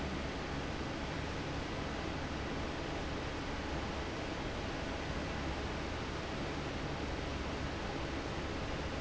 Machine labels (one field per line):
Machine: fan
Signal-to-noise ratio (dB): -6 dB